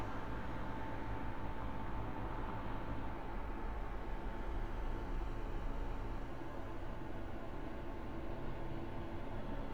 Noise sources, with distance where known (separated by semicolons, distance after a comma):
background noise